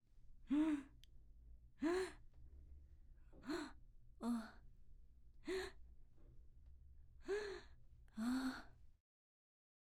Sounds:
Respiratory sounds, Breathing

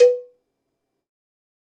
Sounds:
Bell, Cowbell

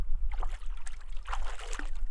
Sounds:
Liquid, Splash

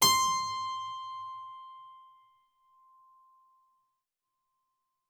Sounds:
Musical instrument, Music, Keyboard (musical)

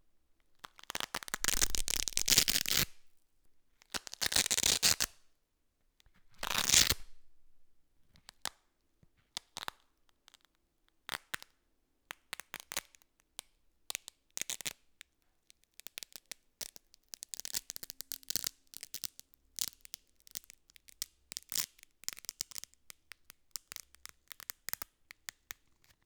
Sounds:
Domestic sounds

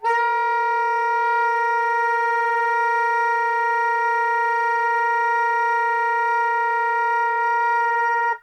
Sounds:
Music, Wind instrument, Musical instrument

